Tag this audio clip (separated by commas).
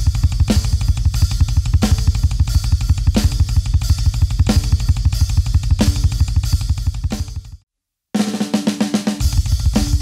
playing double bass